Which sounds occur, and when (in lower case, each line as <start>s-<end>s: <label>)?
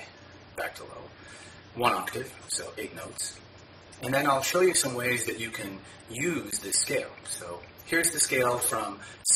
0.0s-9.3s: background noise
0.4s-1.1s: male speech
1.6s-3.4s: male speech
3.9s-5.8s: male speech
6.1s-7.1s: male speech
7.3s-7.6s: male speech
7.8s-9.0s: male speech